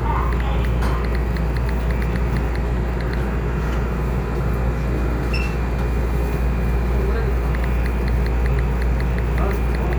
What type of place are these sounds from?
subway train